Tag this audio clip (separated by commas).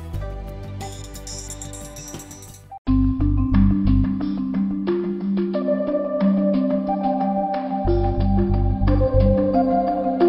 New-age music